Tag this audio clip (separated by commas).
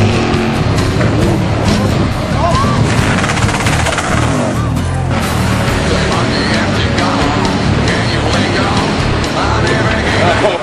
Speech, Vehicle, Music, Motorboat